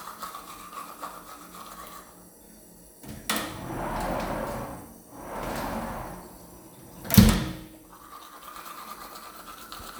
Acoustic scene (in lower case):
restroom